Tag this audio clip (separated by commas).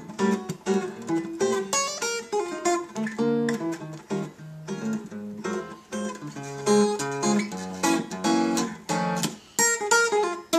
Jazz, Musical instrument, Music, Plucked string instrument, Acoustic guitar, Strum